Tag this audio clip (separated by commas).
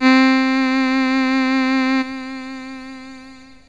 Music, Musical instrument, Keyboard (musical)